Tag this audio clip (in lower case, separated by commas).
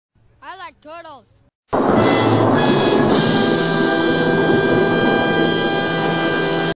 speech, music